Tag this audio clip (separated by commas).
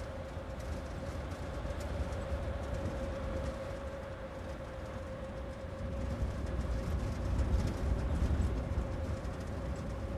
Vehicle